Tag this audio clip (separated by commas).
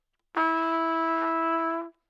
Musical instrument, Trumpet, Brass instrument, Music